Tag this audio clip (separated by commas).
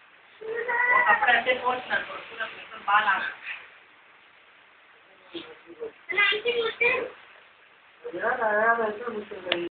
Speech